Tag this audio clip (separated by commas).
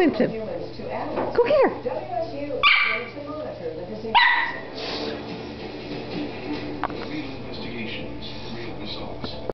Speech, Animal, Music, pets, Dog, Bow-wow